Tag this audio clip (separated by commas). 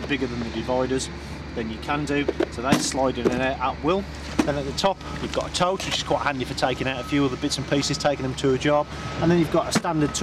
Speech